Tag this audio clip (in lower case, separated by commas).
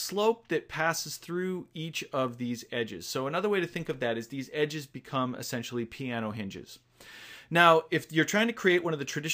speech